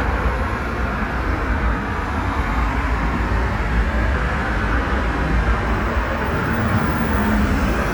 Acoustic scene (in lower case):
street